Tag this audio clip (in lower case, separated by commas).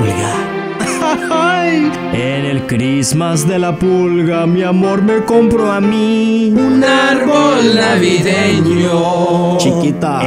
music, speech